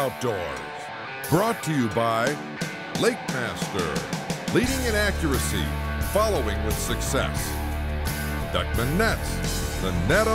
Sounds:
music, speech

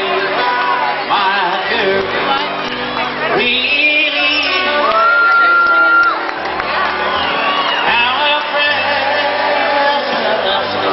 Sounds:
music, male singing

